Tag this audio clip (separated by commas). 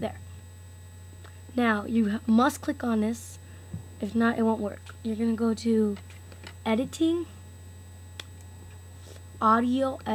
Speech